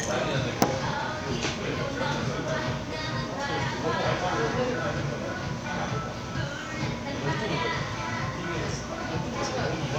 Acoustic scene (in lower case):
crowded indoor space